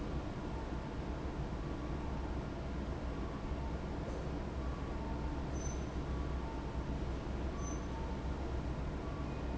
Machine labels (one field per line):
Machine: fan